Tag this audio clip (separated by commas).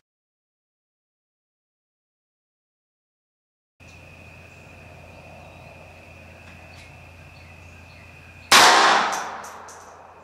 Gunshot